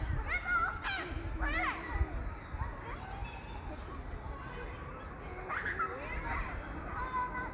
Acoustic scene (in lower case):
park